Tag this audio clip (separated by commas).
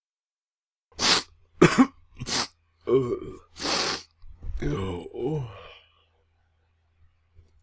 Respiratory sounds